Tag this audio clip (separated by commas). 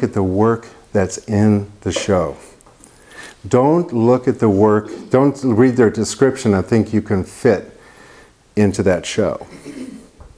Speech